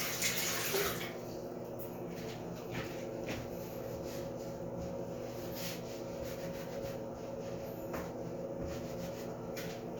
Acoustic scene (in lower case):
restroom